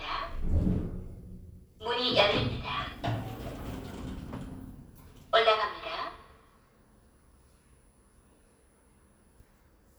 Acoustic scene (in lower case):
elevator